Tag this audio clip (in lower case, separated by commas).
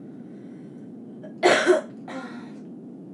respiratory sounds, cough